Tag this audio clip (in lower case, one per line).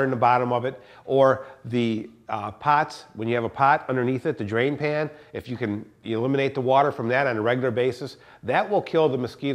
speech